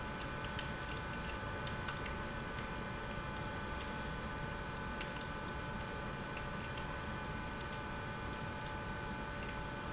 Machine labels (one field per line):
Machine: pump